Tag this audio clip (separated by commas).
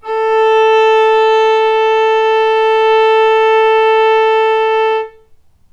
Musical instrument, Music, Bowed string instrument